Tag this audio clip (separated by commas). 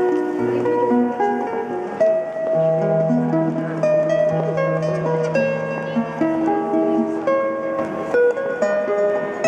Music, Musical instrument, Strum, Plucked string instrument, Speech, Guitar